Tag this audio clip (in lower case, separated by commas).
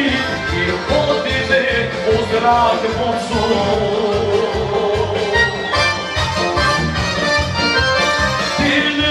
music